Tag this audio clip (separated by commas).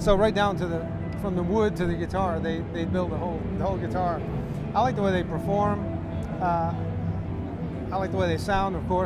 Musical instrument, Speech, Music